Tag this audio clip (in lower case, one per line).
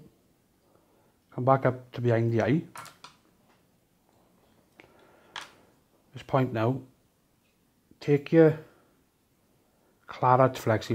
speech